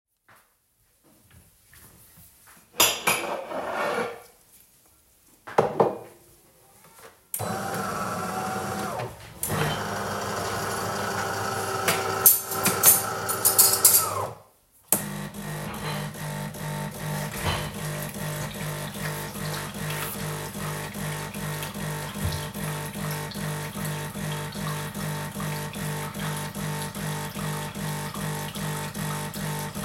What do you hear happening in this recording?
I grabbed a mug, turned the coffee machine on, then got a spoon out of a drawer for said coffee.